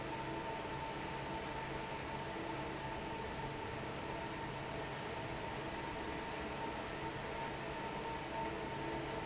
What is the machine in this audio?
fan